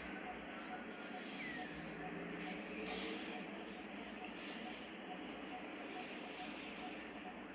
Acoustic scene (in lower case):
park